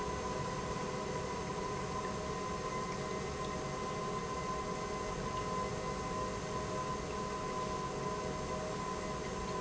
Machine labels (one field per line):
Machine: pump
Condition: normal